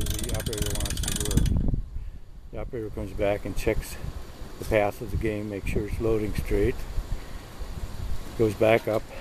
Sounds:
speech

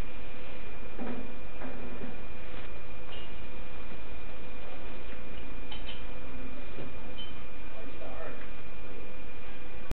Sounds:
speech

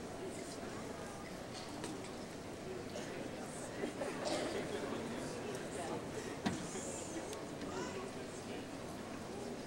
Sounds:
speech

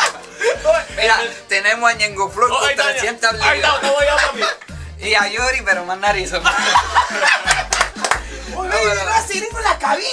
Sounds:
music, speech

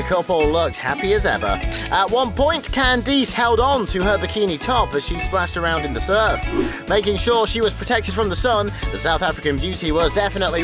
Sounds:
speech, music

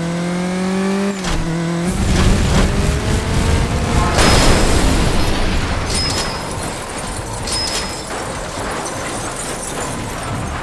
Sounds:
slam

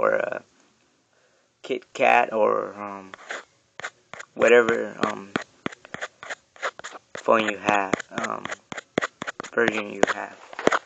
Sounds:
speech, inside a small room

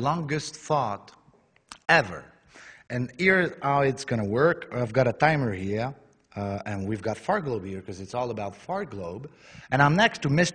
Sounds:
people farting

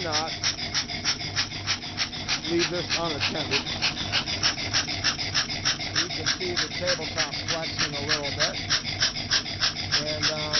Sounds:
speech, engine

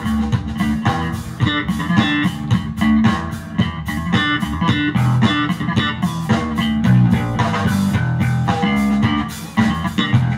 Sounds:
musical instrument, guitar, bass drum, percussion, blues, bass guitar, plucked string instrument, music, drum kit, drum

